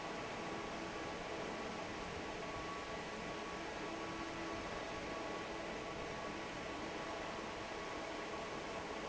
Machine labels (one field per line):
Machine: fan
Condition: normal